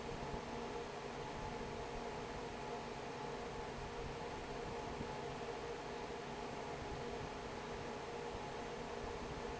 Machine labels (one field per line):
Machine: fan